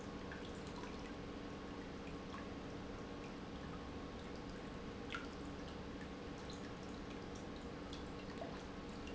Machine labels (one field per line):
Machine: pump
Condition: normal